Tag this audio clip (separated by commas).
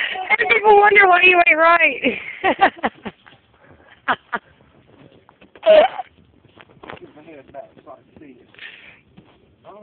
Speech